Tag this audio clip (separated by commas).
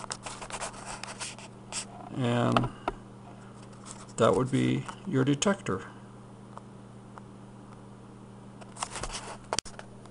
Speech